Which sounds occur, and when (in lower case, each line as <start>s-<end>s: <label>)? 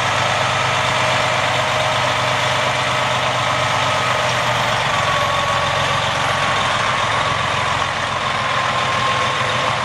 0.0s-9.8s: truck